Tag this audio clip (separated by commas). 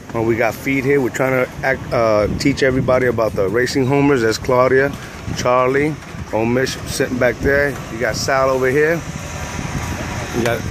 Speech, outside, urban or man-made